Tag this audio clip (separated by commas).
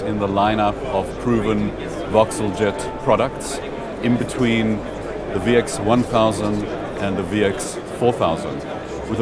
Speech, Music